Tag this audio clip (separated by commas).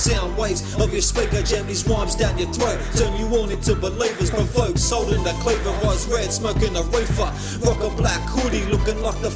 Music